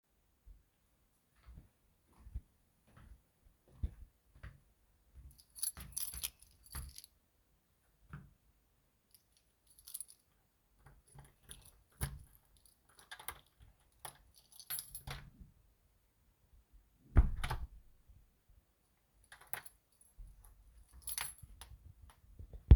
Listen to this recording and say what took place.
i walked to the door, unlocked it, opened it then entered the room. I then locked the door